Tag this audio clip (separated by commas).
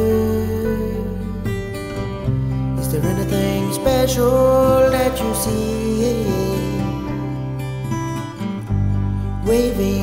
Music, Sad music, Soul music